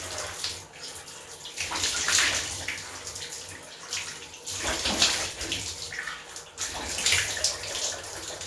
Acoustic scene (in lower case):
restroom